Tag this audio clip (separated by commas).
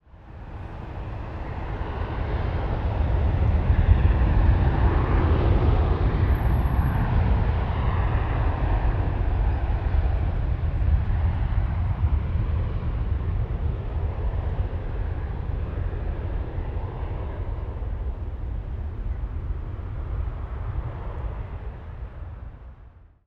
Vehicle, Aircraft